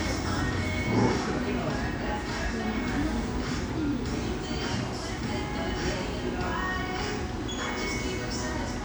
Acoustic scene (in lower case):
cafe